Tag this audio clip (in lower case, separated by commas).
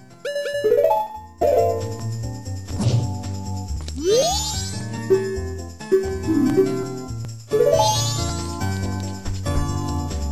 music